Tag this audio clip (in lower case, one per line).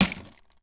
crushing